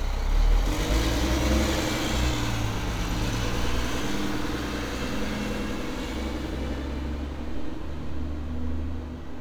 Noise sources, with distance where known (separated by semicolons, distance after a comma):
large-sounding engine, near